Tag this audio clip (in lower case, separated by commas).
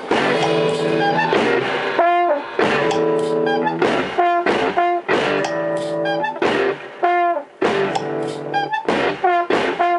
inside a small room, music